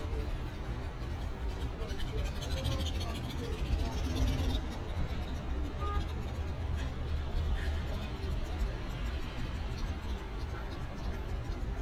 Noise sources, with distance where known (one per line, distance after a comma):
engine of unclear size, near